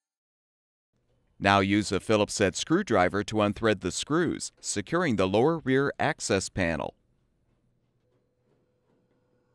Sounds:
Speech

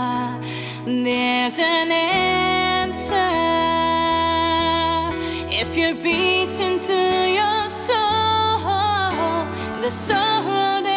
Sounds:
Music, Female singing

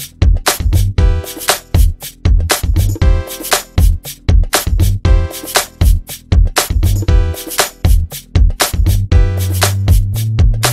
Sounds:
Music

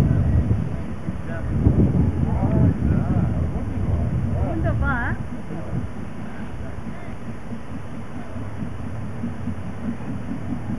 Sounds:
Speech

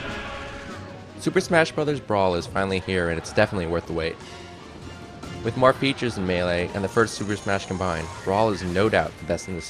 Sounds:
Music, Speech

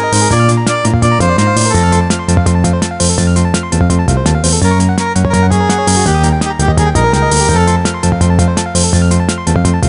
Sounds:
Music

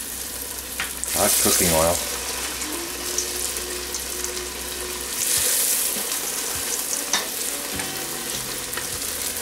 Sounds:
Speech, Music, Frying (food), inside a small room

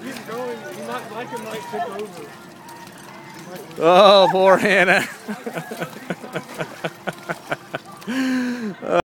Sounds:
Speech

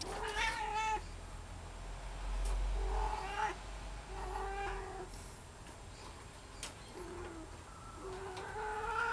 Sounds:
cat meowing, Cat, Domestic animals, Caterwaul, Meow, Animal

